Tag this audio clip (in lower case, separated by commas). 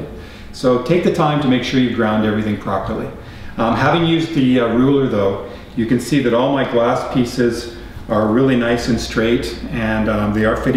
speech